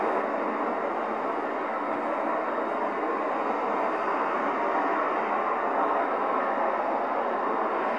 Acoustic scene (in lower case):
street